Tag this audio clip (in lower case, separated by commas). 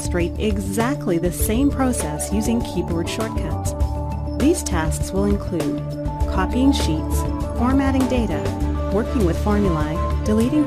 speech, music